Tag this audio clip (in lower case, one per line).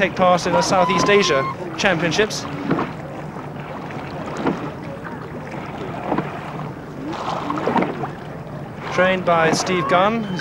canoe
water vehicle